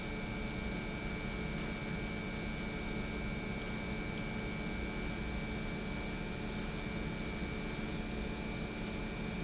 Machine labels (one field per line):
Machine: pump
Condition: normal